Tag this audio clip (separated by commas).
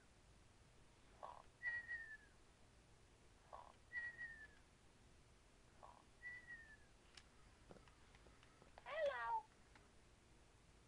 Speech